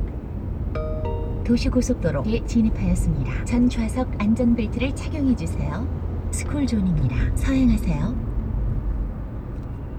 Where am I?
in a car